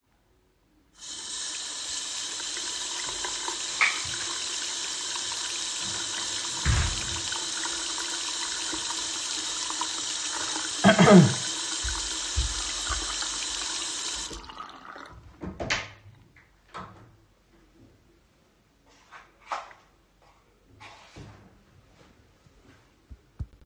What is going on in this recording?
I started with turning on the water then walked away to the door, water still running, closed the door, opened the door, walked backed and stoped the water flowing. During the audio I also caughed.